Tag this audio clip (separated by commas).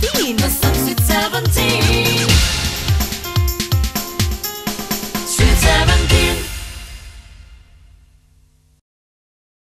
Music